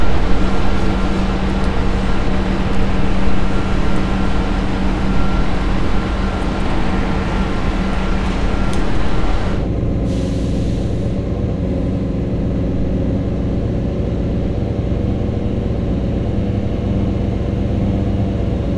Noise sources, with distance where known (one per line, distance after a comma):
large-sounding engine, near